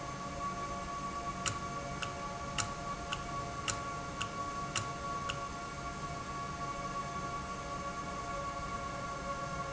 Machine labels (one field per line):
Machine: valve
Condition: normal